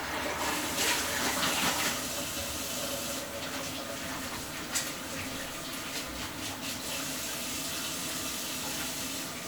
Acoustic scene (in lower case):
restroom